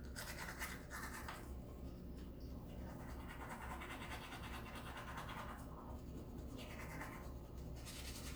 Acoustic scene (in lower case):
restroom